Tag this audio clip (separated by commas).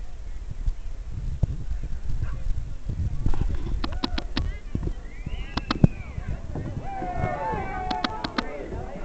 Speech, Gurgling